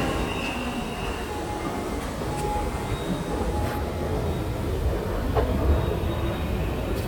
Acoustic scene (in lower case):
subway station